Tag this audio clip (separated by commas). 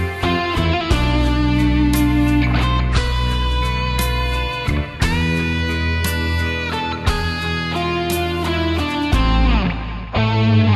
Strum, Electric guitar, Music, Musical instrument, playing electric guitar, Guitar